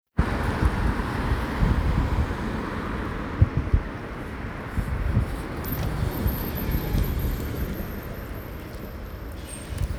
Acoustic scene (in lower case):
street